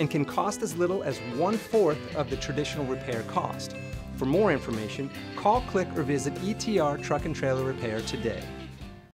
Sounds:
music
speech

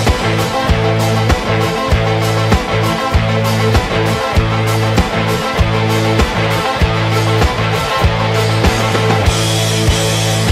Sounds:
music

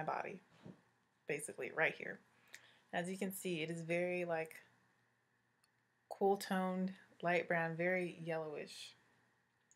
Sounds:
speech

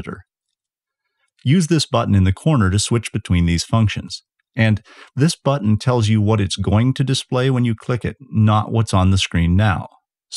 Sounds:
speech

